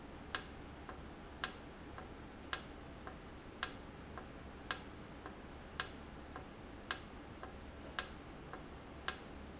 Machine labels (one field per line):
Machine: valve